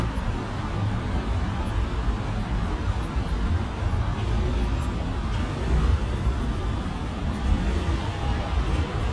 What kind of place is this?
residential area